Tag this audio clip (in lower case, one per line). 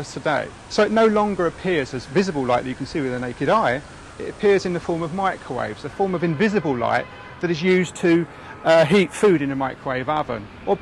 speech
white noise